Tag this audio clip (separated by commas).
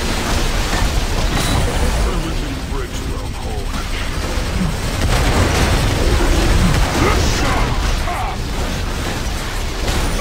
Speech, crash